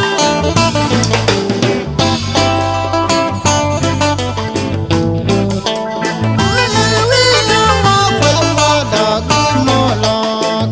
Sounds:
independent music
music

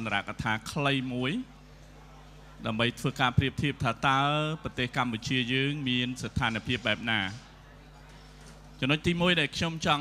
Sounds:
narration
male speech
speech

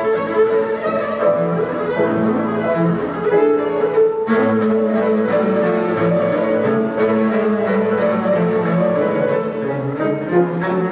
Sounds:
bowed string instrument
cello

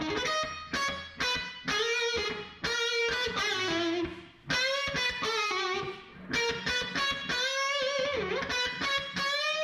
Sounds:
music

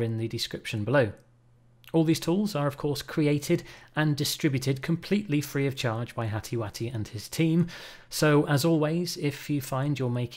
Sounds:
speech

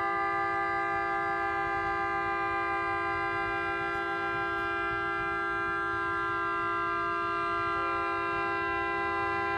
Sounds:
rustle

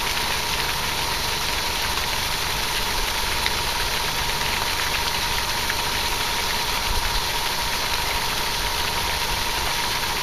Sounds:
outside, rural or natural

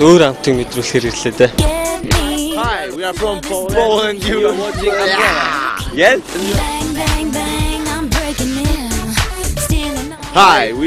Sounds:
exciting music
music
speech

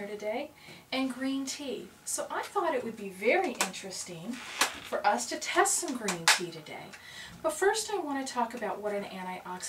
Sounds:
speech

